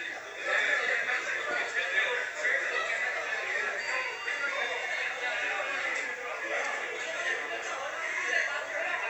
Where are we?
in a crowded indoor space